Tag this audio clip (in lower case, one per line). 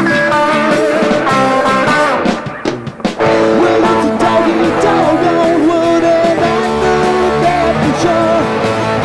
music